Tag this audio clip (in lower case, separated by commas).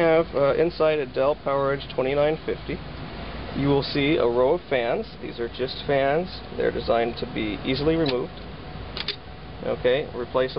speech, inside a large room or hall